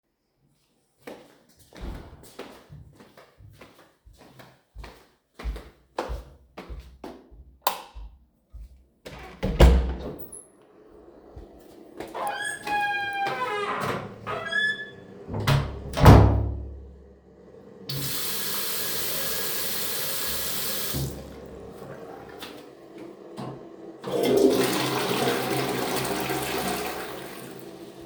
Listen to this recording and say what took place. I walked towards the toilet, switched on the light, opened the door and closes the same, open and closses the tap for running water then flushed the toilet